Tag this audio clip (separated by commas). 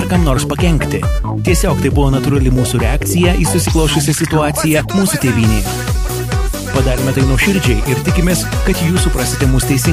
Speech, Music